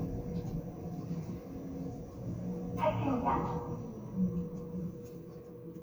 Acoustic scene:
elevator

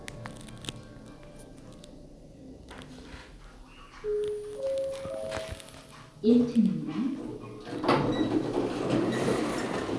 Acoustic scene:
elevator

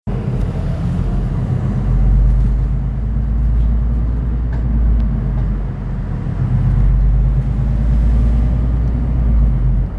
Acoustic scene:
bus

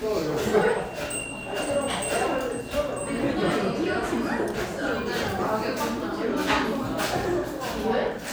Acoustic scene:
cafe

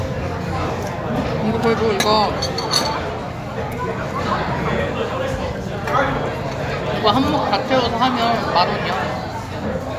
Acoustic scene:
restaurant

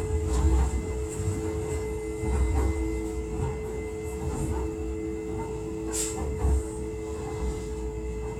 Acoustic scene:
subway train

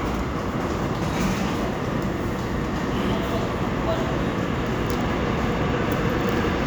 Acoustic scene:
subway station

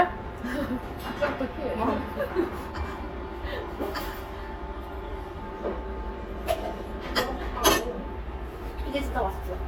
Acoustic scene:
restaurant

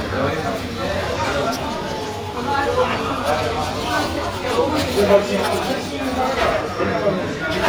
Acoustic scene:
crowded indoor space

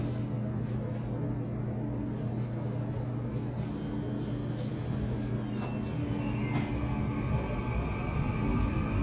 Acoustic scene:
subway train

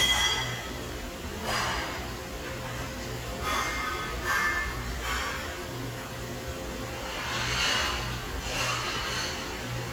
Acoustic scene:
restaurant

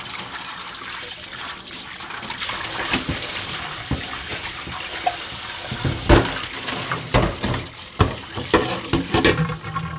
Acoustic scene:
kitchen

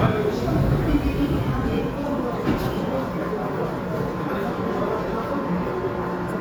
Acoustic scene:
subway station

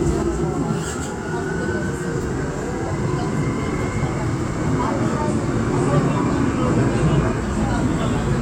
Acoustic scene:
subway train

